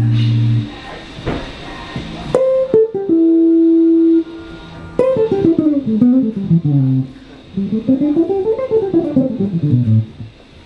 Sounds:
Music

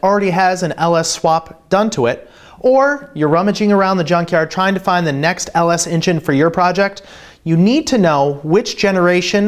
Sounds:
Speech

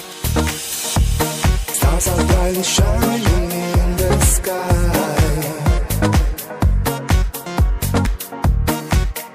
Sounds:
Music

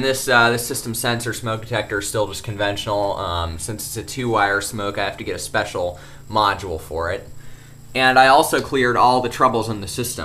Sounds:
Speech

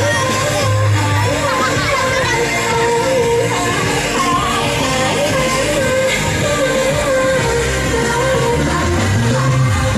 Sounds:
Music, Speech

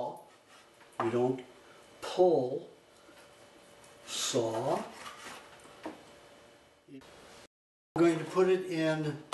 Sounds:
Speech

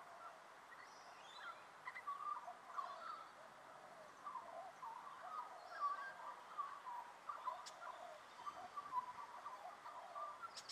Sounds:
magpie calling

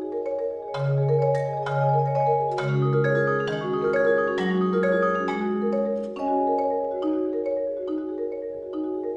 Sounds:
Percussion, Music

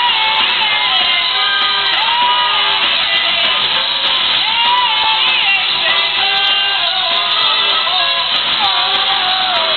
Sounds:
Music

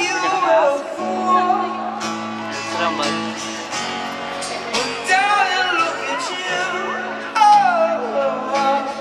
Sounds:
Male singing, Music, Speech

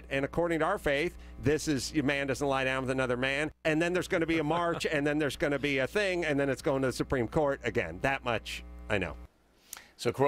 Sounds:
Speech

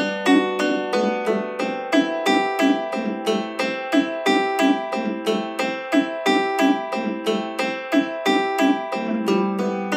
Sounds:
playing mandolin

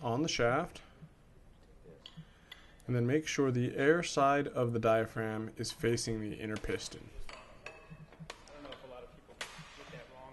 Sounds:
Speech

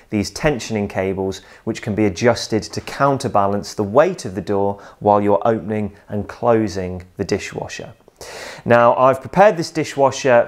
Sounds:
Speech

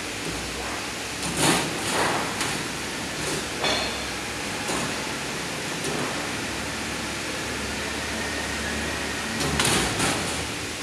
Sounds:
inside a large room or hall

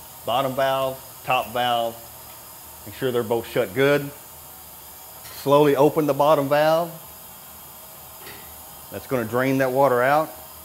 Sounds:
Speech

